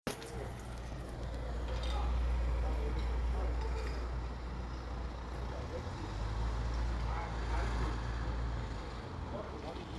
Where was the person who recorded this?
in a residential area